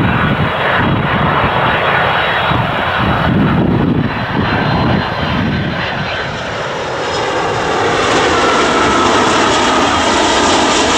Plane taking off or landing